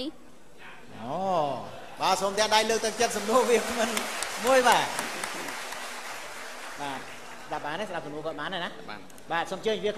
A man is speaking followed by clapping